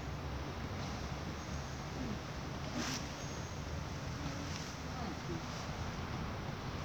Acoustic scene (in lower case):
residential area